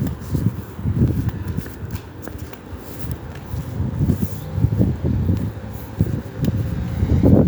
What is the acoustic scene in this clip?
residential area